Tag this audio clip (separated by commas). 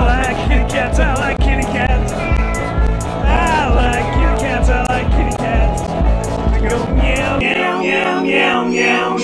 Cat, Meow, Music, pets, Animal